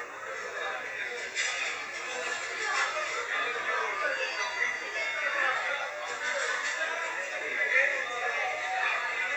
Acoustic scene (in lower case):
crowded indoor space